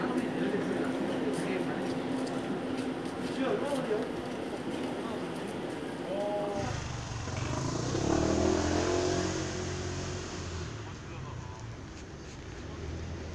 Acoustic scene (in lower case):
street